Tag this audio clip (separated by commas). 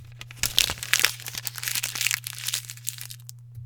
Crumpling